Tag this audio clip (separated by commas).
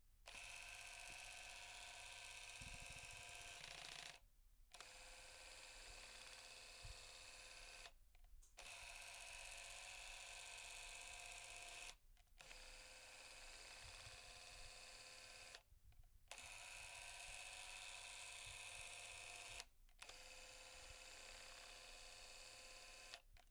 Camera, Mechanisms